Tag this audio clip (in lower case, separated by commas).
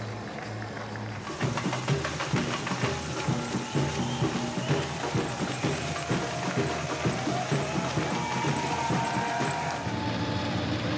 outside, urban or man-made, music, run